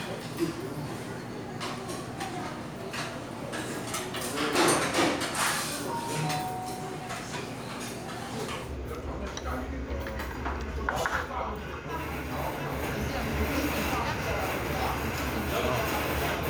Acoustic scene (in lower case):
restaurant